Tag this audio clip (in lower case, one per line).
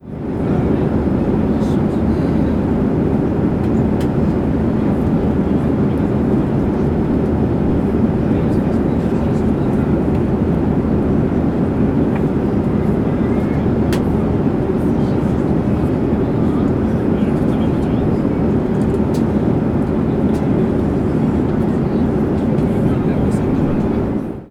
airplane
human group actions
aircraft
chatter
vehicle